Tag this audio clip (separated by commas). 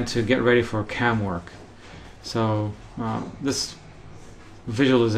Speech